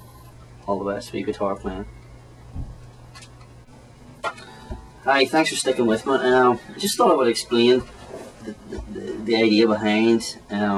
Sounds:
Speech

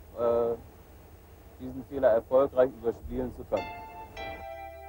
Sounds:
Speech, Music

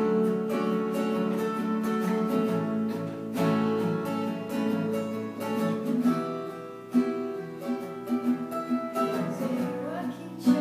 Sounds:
Music, Singing, Guitar, Musical instrument, String section

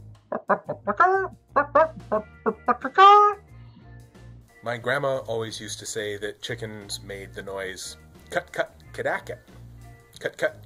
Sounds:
Speech

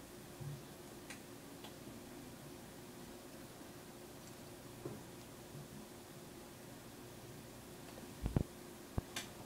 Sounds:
inside a small room

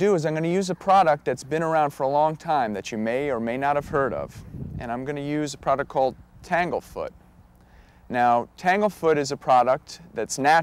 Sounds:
Speech

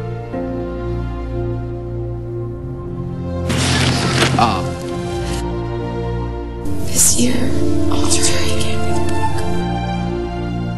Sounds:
Speech, Sad music, Music

